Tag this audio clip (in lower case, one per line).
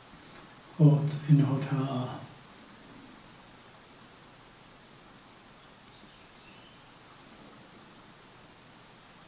speech
inside a small room